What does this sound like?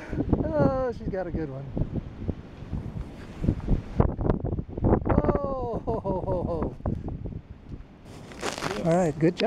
A man speaking the wind is blowing followed by a crunching sound